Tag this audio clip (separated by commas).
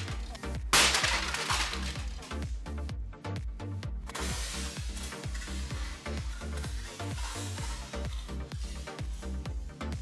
Music